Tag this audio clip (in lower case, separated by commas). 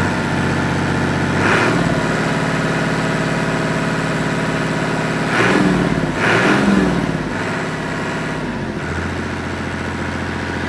heavy engine (low frequency)